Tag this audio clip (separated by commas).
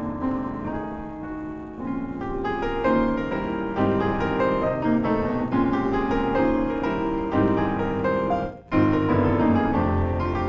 Keyboard (musical), Musical instrument, Piano, Music